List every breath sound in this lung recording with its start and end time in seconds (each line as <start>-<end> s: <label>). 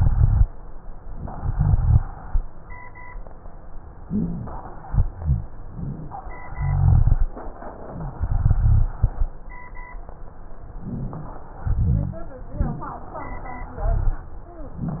4.06-4.48 s: inhalation
4.06-4.48 s: wheeze
5.10-5.52 s: exhalation
5.10-5.52 s: rhonchi
6.58-7.29 s: rhonchi
8.16-8.86 s: rhonchi
10.79-11.50 s: inhalation
11.67-12.37 s: exhalation
11.67-12.37 s: rhonchi
13.77-14.27 s: rhonchi